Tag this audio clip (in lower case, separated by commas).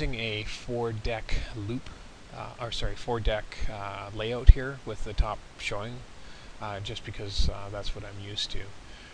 speech